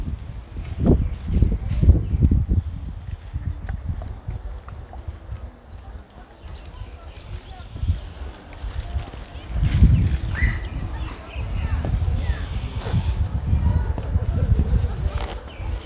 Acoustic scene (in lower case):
park